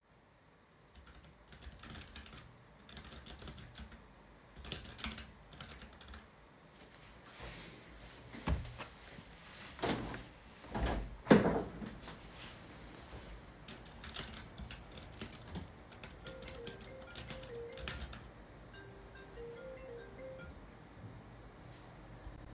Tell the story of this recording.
I typed on a keyboard before getting up and opening a window. Then I typed some more on the keyboard before getting a call on my phone.